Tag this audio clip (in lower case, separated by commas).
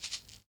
music, musical instrument, rattle (instrument), percussion